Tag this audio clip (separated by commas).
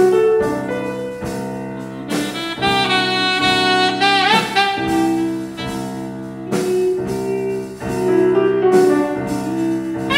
Music, Saxophone